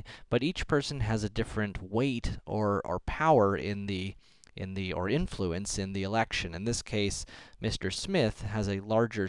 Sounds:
speech

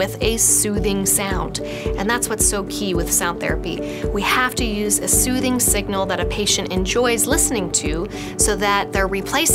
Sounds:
music, speech

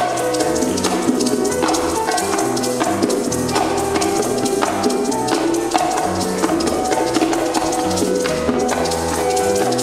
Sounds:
playing bongo

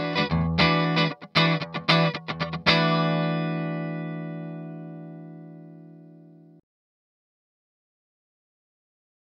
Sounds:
music

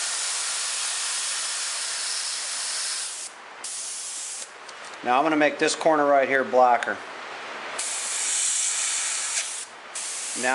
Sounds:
hiss, steam

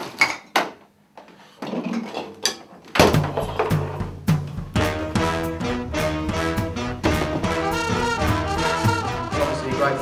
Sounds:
speech, music, inside a large room or hall

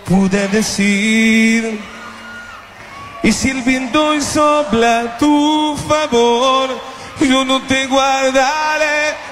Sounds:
music

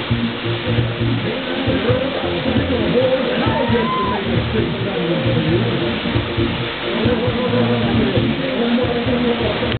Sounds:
music, stream

